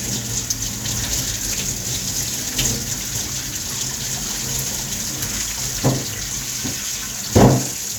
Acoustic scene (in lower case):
kitchen